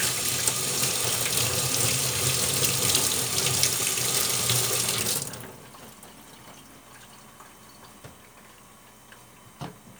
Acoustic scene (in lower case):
kitchen